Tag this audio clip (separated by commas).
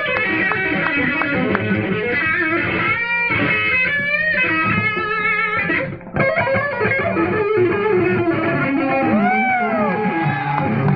Plucked string instrument, Music, Guitar, Musical instrument, Strum, Electric guitar